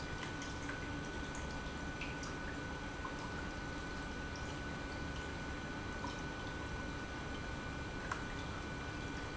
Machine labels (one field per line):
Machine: pump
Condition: normal